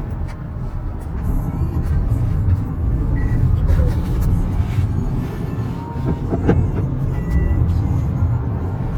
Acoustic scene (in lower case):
car